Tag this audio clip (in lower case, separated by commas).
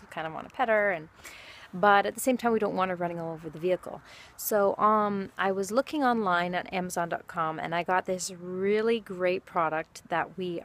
speech